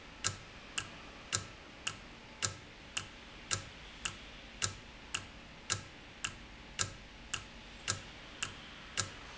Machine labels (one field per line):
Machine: valve